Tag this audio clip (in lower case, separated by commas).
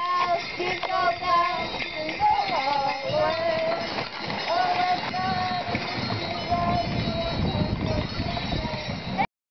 jingle